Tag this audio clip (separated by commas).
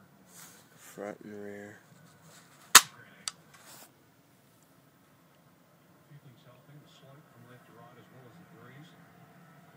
Speech